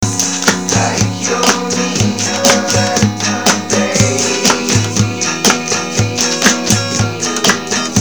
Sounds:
Musical instrument, Human voice, Acoustic guitar, Percussion, Plucked string instrument, Guitar, Drum, Music

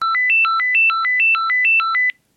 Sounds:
Alarm, Telephone, Ringtone

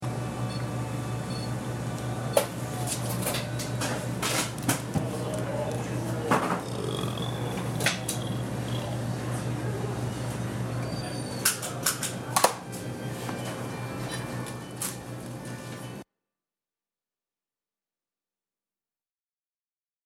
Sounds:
Burping

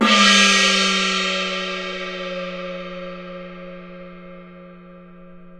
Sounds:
Musical instrument, Music, Percussion, Gong

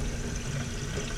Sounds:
Sink (filling or washing), Domestic sounds

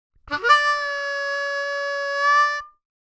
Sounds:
Harmonica, Music, Musical instrument

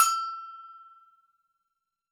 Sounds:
Musical instrument, Percussion, Bell, Music

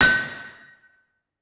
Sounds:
Hammer, Tools

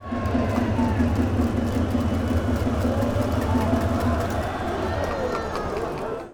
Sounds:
Crowd, Human group actions

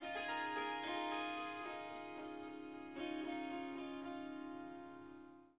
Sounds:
Musical instrument, Music, Harp

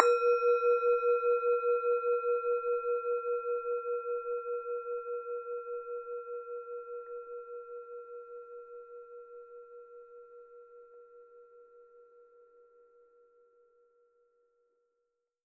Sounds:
Musical instrument, Music

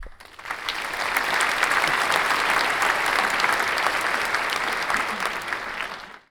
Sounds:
Human group actions, Applause, Crowd

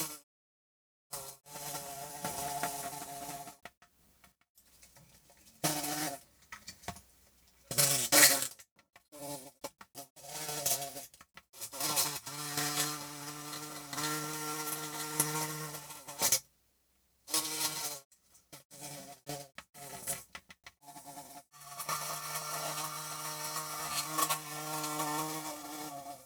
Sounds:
Animal, Insect, Wild animals

